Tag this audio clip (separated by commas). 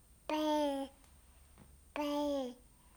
Human voice, Speech